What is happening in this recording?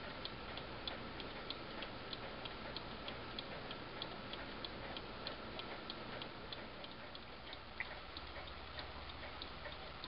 A tick took of a clock is heard multiple times